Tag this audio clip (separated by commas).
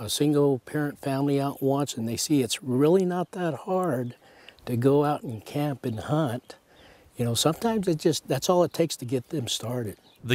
Speech